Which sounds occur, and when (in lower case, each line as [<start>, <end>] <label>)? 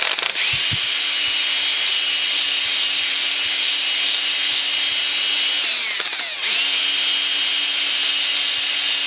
[0.00, 0.29] generic impact sounds
[0.00, 9.05] power tool
[0.45, 0.76] generic impact sounds
[5.88, 6.26] generic impact sounds